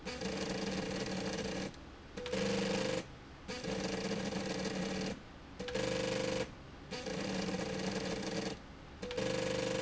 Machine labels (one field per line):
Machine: slide rail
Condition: abnormal